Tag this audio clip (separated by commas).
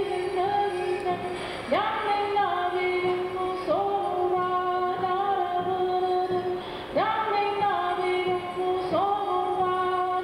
Female singing